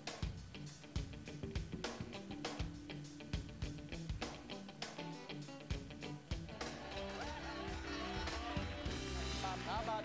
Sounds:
speech, music

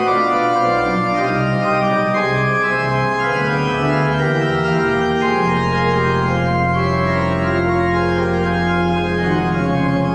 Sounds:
music, theme music, traditional music, jingle (music)

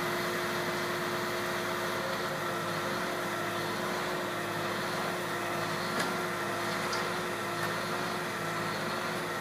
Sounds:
engine, jet engine, idling, aircraft, fixed-wing aircraft, vehicle

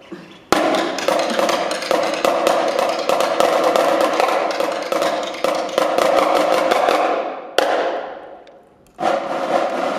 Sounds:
percussion, drum

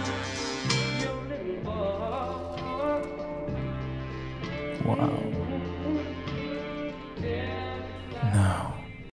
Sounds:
speech, music

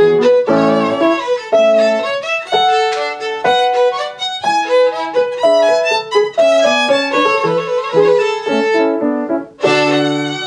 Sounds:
fiddle, musical instrument, music

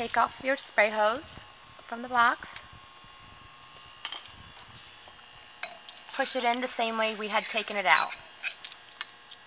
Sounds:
speech

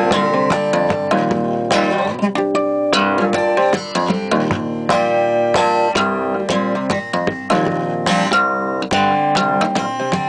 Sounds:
strum, guitar, playing acoustic guitar, acoustic guitar, musical instrument, plucked string instrument, music

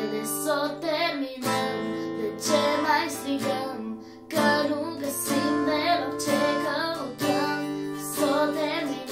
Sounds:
music

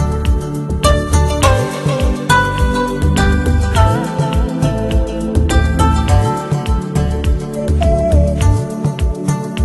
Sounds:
music

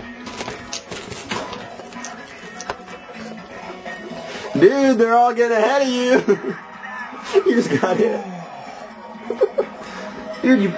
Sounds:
music, speech

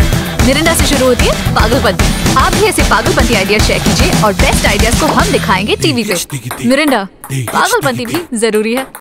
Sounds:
speech, music

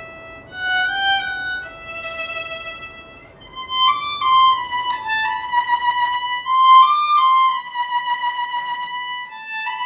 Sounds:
violin, music, musical instrument

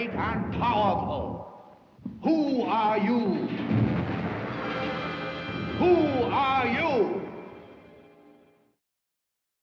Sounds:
speech, music

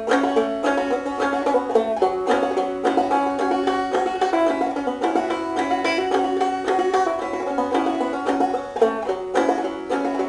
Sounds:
music, banjo, playing banjo

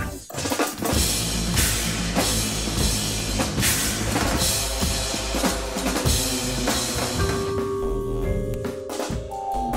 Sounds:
music, percussion

